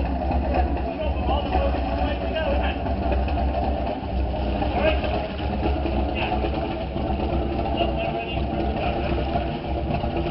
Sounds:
Water vehicle, speedboat, Speech, Vehicle

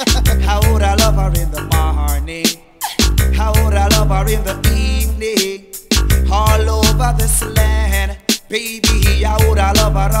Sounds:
Music

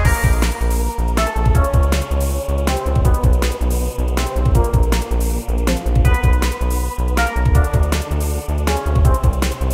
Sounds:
Music

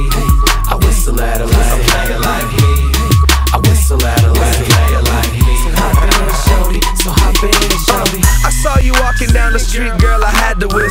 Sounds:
Whistle, Music

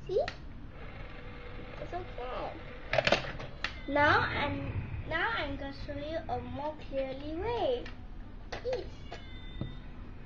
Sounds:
Meow, Speech

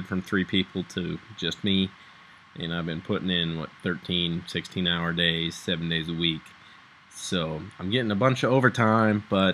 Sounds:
Speech

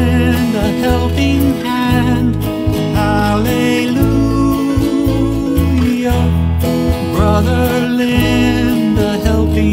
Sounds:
Music

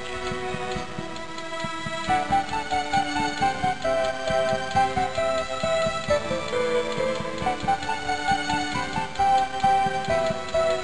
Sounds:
Music

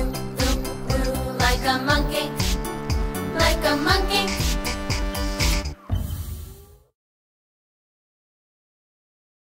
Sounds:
Music, Sound effect

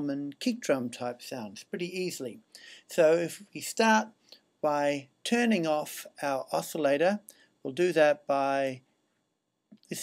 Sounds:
Speech

